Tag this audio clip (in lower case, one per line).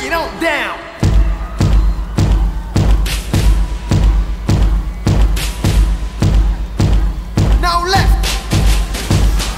music
speech